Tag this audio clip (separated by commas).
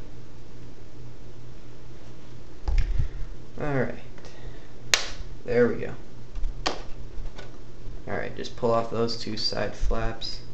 inside a small room, Speech